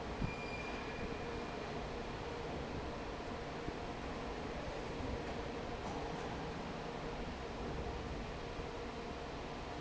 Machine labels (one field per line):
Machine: fan